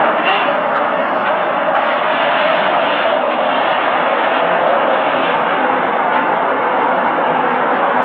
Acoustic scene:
subway station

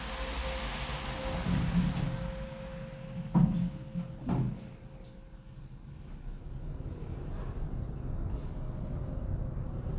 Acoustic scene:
elevator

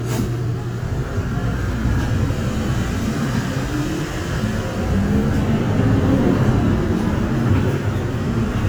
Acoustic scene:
bus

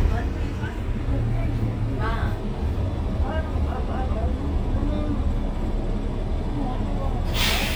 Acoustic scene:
bus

